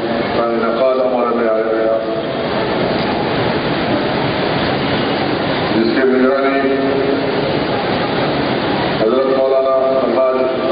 A man is giving a speech